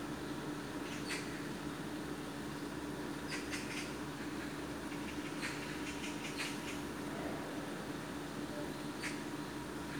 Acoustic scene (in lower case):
park